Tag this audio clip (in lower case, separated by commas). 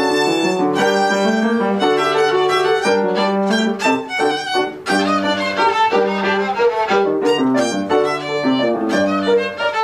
musical instrument, music, violin